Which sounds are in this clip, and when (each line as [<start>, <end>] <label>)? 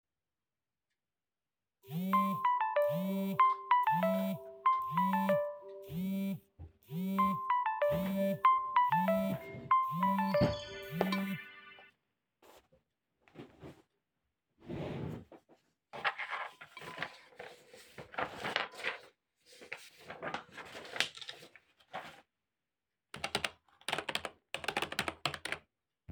[1.83, 11.95] phone ringing
[9.43, 11.95] footsteps
[23.08, 25.72] keyboard typing